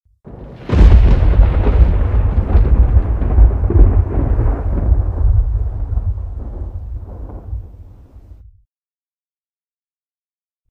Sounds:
thunderstorm, thunder

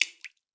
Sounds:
liquid, drip

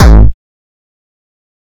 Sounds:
percussion, drum kit, musical instrument, music

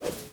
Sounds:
whoosh

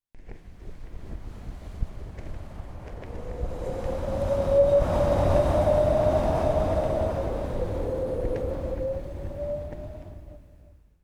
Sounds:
wind

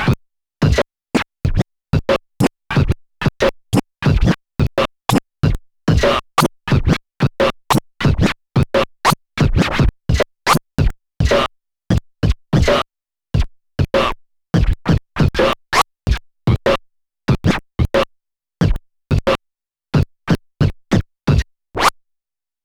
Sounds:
musical instrument, scratching (performance technique), music

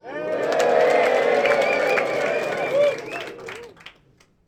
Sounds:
human group actions, crowd, cheering, applause

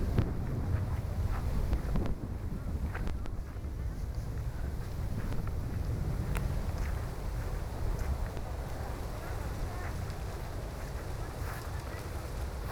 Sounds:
wind

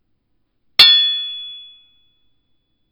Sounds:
glass, hammer, chink, tools

